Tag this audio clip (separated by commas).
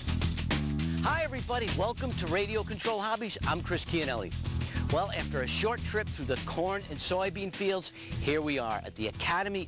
Music, Speech, Radio